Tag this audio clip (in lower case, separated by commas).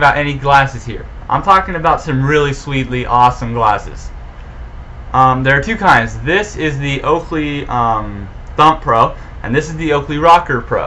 speech